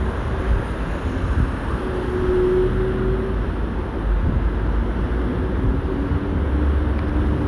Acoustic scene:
street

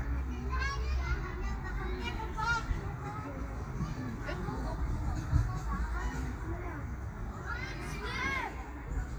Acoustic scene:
park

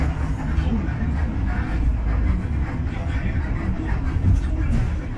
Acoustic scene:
bus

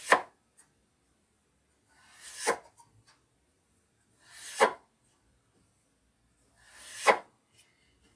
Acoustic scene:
kitchen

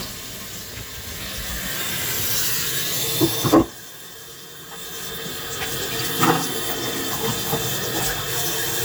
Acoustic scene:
kitchen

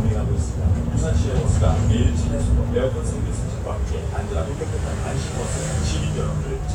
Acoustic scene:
bus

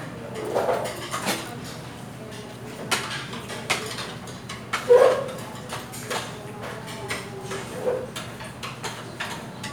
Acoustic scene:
restaurant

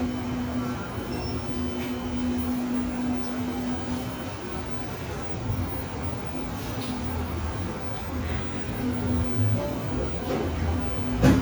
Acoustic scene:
cafe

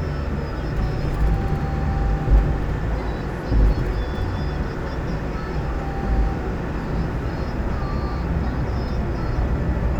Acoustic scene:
car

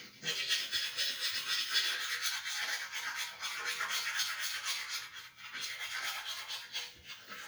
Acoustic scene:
restroom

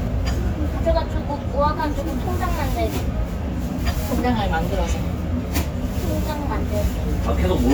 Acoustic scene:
restaurant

